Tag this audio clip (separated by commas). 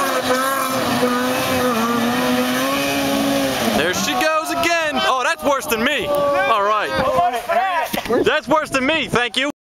Speech